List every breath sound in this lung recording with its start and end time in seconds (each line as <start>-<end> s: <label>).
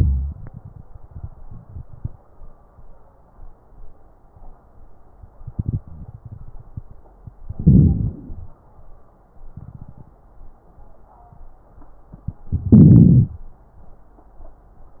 7.47-8.59 s: inhalation
7.47-8.59 s: crackles
12.52-13.44 s: inhalation